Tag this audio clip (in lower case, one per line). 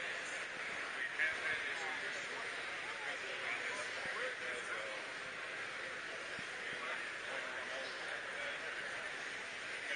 speech